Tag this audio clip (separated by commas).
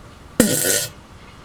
Fart